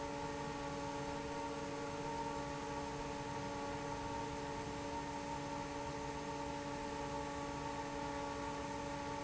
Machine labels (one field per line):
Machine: fan